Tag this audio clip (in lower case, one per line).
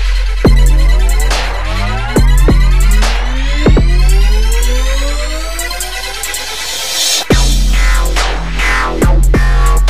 electronic music
dubstep
music